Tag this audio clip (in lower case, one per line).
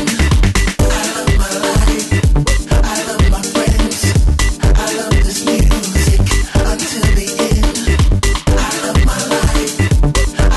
exciting music
music